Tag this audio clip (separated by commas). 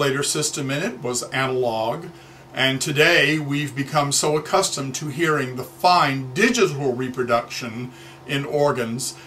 Speech